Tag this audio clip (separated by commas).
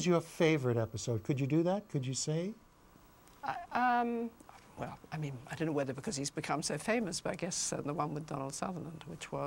Speech, inside a small room